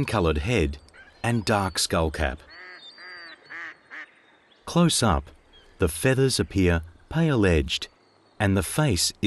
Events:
0.0s-0.7s: man speaking
0.0s-4.1s: water
0.0s-9.2s: background noise
0.8s-0.9s: tick
0.9s-1.2s: duck
1.2s-2.3s: man speaking
2.4s-2.8s: quack
2.5s-4.6s: bird vocalization
2.9s-3.3s: quack
3.5s-3.7s: quack
3.9s-4.1s: quack
4.6s-5.3s: man speaking
5.4s-5.8s: bird vocalization
5.8s-6.8s: man speaking
6.7s-7.1s: bird vocalization
7.1s-7.8s: man speaking
7.9s-8.4s: bird vocalization
8.4s-9.2s: man speaking

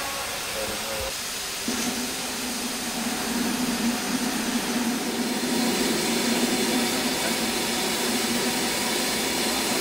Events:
0.0s-9.8s: steam
0.0s-9.8s: train
0.5s-1.1s: speech
9.4s-9.8s: male speech

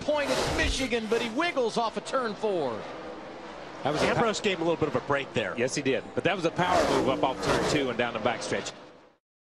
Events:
0.0s-2.8s: man speaking
0.0s-8.7s: conversation
0.0s-9.2s: auto racing
0.2s-1.4s: car passing by
3.8s-4.9s: man speaking
3.8s-4.3s: car passing by
5.1s-6.0s: man speaking
6.2s-8.8s: man speaking
6.5s-7.9s: car passing by

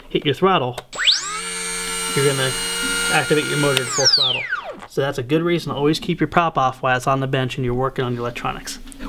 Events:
0.0s-9.0s: background noise
0.1s-0.8s: male speech
0.7s-0.9s: generic impact sounds
0.9s-4.9s: mechanisms
2.1s-2.6s: male speech
3.1s-4.4s: male speech
3.7s-3.9s: generic impact sounds
5.0s-8.8s: male speech

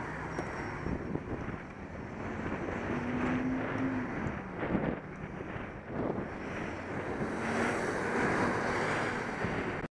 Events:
0.0s-9.8s: bus
0.0s-9.8s: wind
0.3s-0.4s: tick
0.3s-1.1s: squeal
0.9s-1.5s: wind noise (microphone)
2.2s-3.4s: wind noise (microphone)
2.3s-4.6s: revving
4.6s-5.1s: wind noise (microphone)
5.5s-6.3s: wind noise (microphone)
6.7s-9.9s: revving
6.9s-9.9s: wind noise (microphone)

